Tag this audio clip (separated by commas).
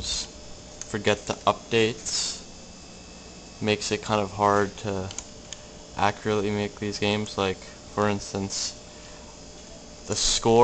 Speech